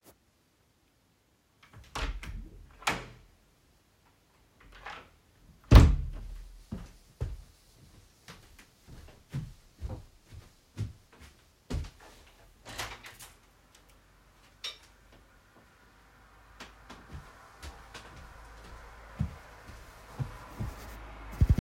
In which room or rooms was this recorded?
bedroom